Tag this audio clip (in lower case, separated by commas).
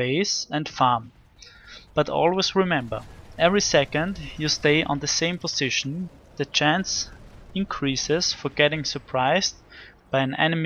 speech